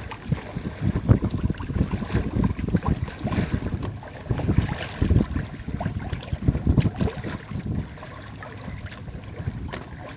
Water is lapping against an object